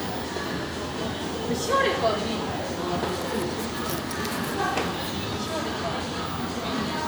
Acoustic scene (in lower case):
crowded indoor space